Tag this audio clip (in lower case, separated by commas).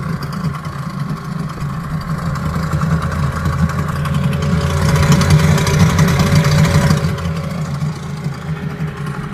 idling, engine, medium engine (mid frequency)